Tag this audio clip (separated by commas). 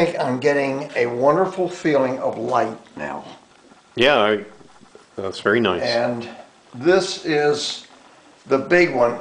Speech